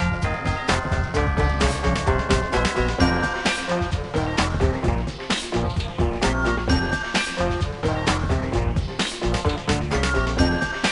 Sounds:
Music

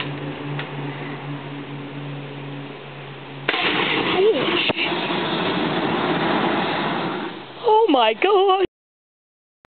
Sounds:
Speech

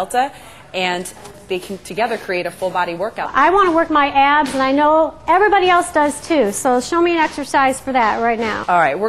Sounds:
Speech

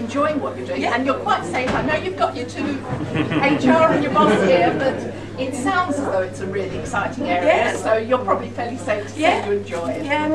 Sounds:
Speech

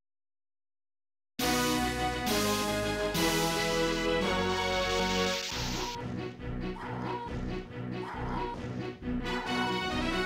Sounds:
Music

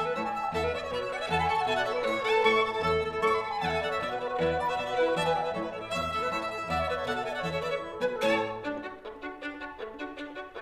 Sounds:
Musical instrument, Flute, Cello, playing cello, Music, Violin

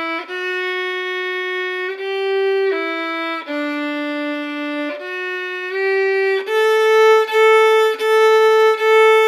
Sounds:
Music, Musical instrument, Violin

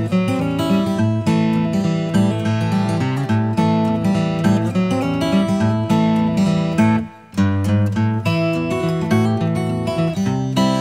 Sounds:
Music

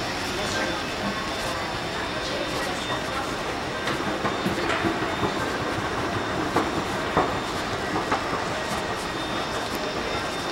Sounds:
Speech, inside a public space

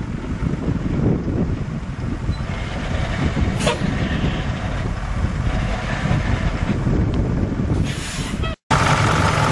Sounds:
Truck, Vehicle

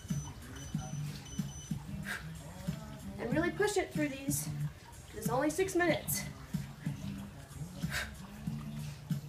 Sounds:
Speech, Music

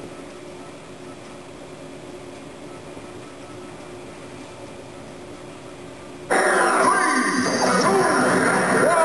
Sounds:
Music, Speech

